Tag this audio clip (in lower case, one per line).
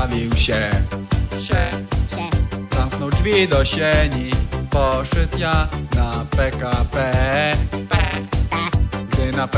music